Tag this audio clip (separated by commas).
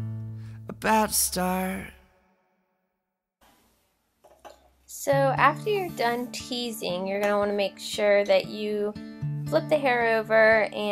inside a small room, Speech, Music